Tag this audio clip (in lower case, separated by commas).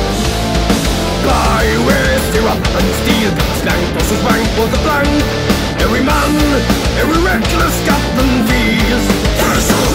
music